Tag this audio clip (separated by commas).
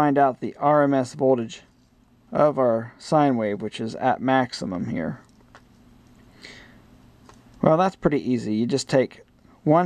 Speech, inside a small room